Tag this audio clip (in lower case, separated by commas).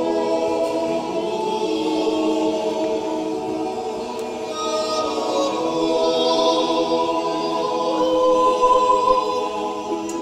choir, a capella